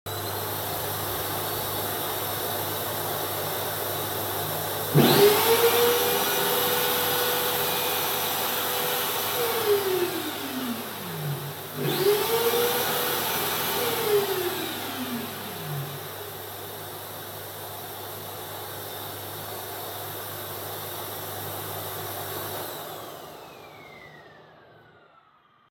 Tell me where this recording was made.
hallway